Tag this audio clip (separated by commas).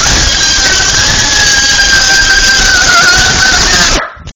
Screaming, Human voice